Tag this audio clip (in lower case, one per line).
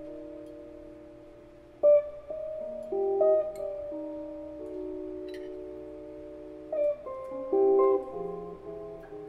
music
guitar
plucked string instrument
musical instrument
inside a large room or hall